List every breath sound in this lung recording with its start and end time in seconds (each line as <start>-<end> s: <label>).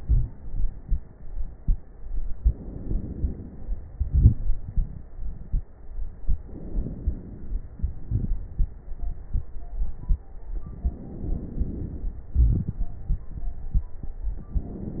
0.00-2.39 s: exhalation
0.00-2.39 s: crackles
2.37-3.86 s: inhalation
3.87-6.33 s: exhalation
3.87-6.33 s: crackles
6.39-7.70 s: inhalation
7.70-10.54 s: exhalation
7.70-10.54 s: crackles
10.62-12.32 s: inhalation
12.33-12.84 s: wheeze
12.33-14.45 s: exhalation
14.50-15.00 s: inhalation